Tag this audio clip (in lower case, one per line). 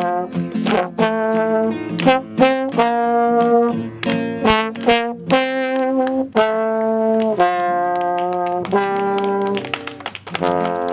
playing trombone